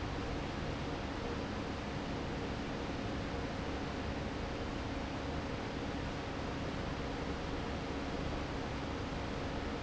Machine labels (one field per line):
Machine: fan